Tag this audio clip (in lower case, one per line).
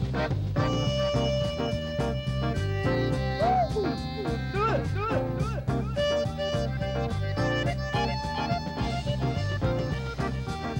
music
jazz